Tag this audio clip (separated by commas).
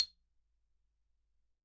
Mallet percussion, Musical instrument, Percussion, xylophone, Music